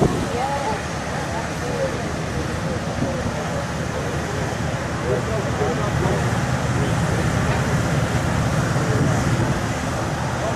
An engine running while people are talking in the background